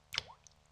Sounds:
Water, Rain, Raindrop

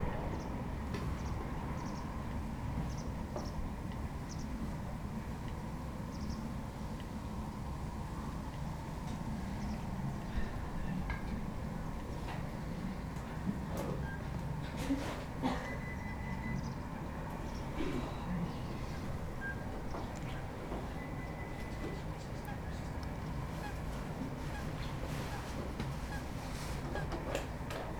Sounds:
Bird vocalization, Bird, Animal, Wild animals

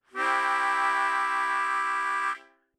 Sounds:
Musical instrument, Harmonica, Music

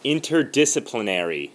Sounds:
Speech, Human voice

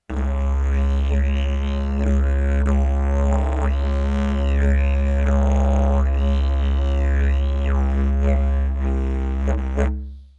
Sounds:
Music, Musical instrument

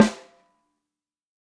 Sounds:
Music, Drum, Percussion, Musical instrument, Snare drum

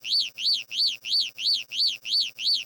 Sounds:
Car, Motor vehicle (road), Vehicle, Alarm

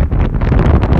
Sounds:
Wind

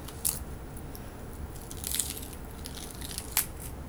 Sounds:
Crack

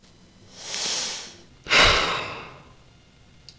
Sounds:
Breathing, Human voice, Sigh, Respiratory sounds

